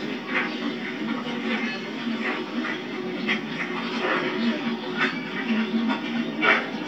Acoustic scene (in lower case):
park